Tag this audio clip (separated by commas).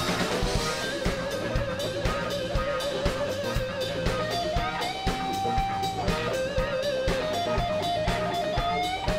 Music